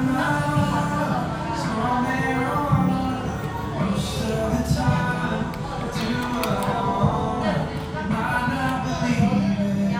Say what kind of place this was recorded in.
cafe